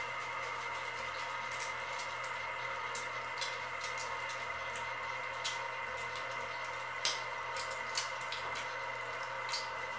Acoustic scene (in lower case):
restroom